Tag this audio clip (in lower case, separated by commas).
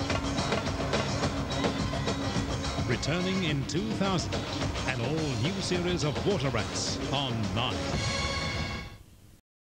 speech, music